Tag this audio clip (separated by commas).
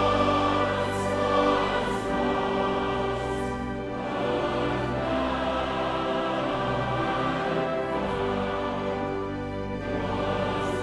Choir, Music